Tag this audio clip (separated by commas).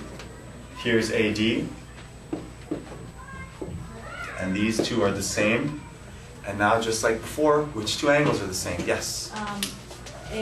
Speech, Male speech